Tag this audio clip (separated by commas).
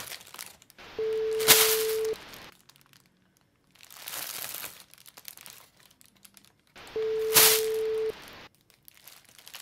Rustle